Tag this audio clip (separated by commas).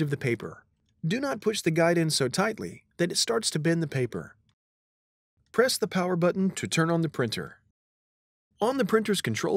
Speech